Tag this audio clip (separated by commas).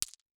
Glass